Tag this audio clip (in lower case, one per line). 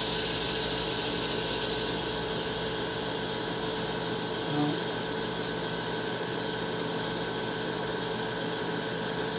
inside a small room
speech